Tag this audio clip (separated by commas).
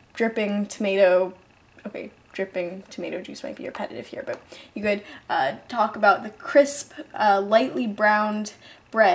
Speech